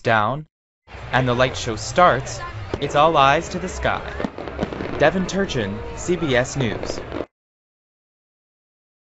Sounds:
fireworks

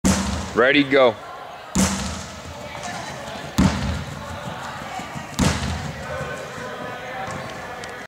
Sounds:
speech

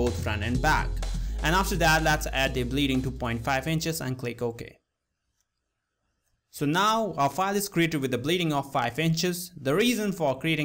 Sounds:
speech, music

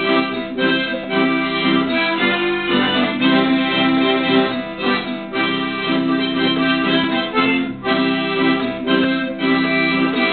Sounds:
acoustic guitar, musical instrument, music, guitar

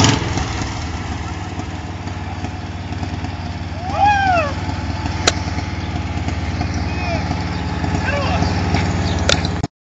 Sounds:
speech, vehicle, motor vehicle (road), car

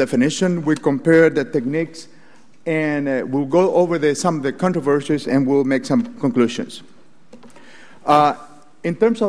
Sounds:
speech

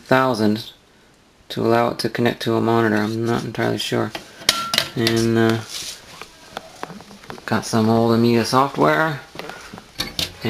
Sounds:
speech, inside a small room

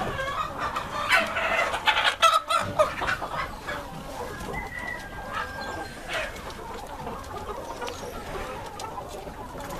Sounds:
chicken crowing, cluck, fowl, cock-a-doodle-doo, rooster

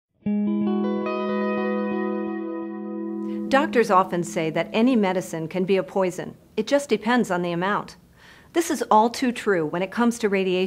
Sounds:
music, speech

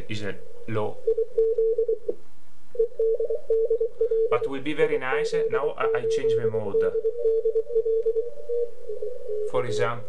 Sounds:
speech

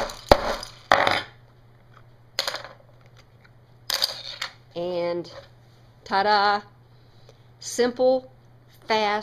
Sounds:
speech

